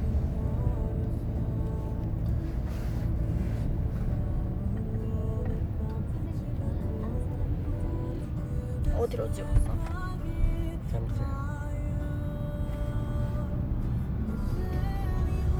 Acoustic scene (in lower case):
car